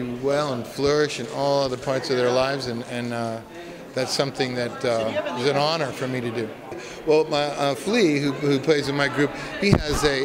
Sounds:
Speech

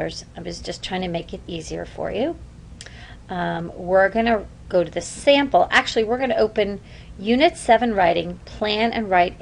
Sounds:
Speech

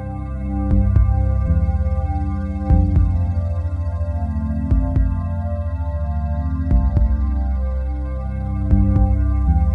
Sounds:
Music, Synthesizer

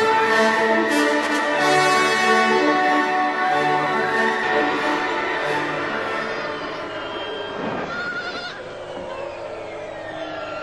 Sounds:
Bleat, Sheep, Music

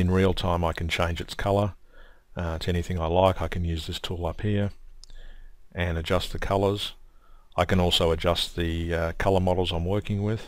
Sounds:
Speech

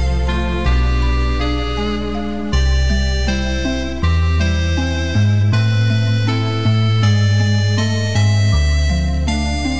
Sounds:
Background music, Music

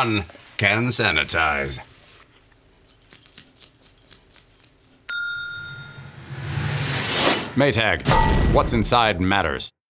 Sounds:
Speech, Music

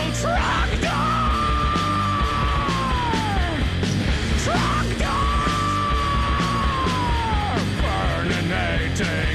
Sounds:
Music, Musical instrument, Guitar, Plucked string instrument

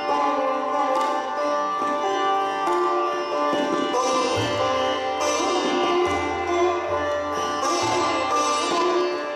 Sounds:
Sitar, Music, Musical instrument, Plucked string instrument

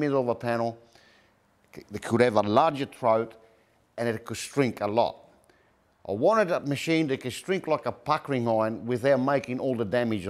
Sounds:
Speech

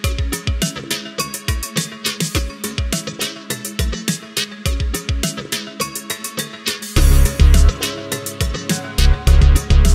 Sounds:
Music

